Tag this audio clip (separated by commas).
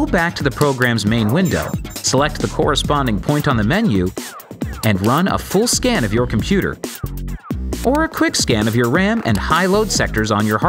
Music, Speech